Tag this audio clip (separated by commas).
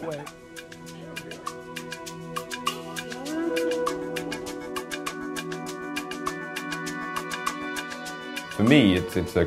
Speech, Music